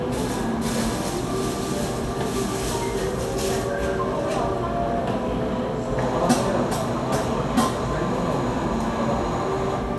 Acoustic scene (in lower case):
cafe